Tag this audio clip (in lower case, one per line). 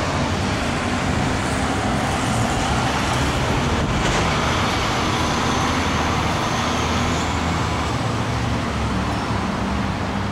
vehicle
bicycle